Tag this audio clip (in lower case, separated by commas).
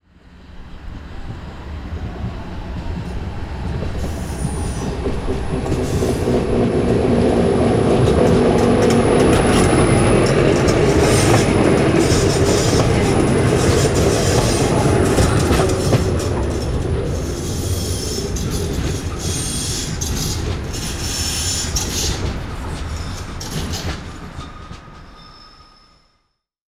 vehicle